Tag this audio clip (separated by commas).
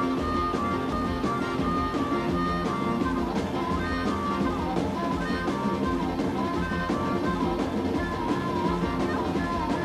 Pop music, Music